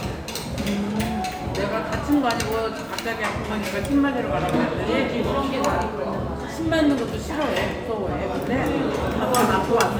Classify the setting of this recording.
restaurant